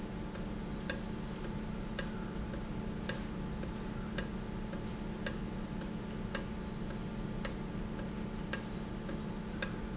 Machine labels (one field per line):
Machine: valve